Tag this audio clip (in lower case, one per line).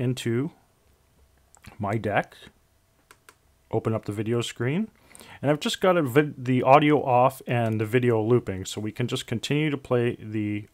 speech